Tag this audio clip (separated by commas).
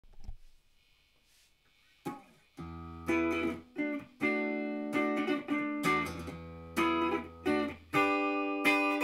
Guitar, Electronic tuner, Music